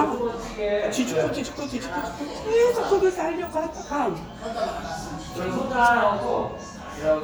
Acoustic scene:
restaurant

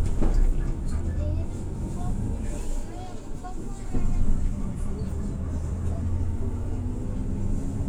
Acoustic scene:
bus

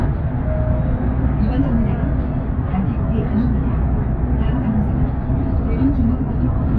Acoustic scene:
bus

